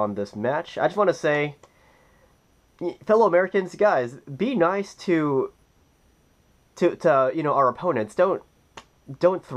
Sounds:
speech
inside a small room

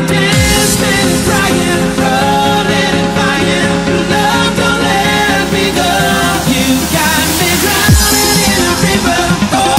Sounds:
dubstep
electronic music
music

